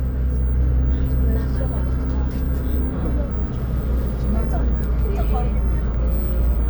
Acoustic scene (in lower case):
bus